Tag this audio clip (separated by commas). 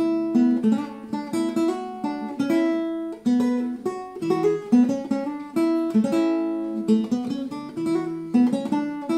Music, Musical instrument, Plucked string instrument, Acoustic guitar, Bass guitar, Guitar, Strum